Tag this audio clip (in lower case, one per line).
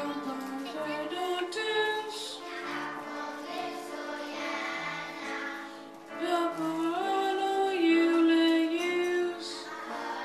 choir
singing